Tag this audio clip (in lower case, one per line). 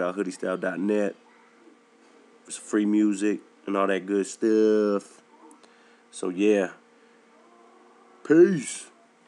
speech